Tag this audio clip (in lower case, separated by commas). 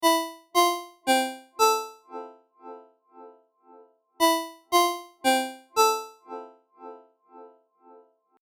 telephone, ringtone, alarm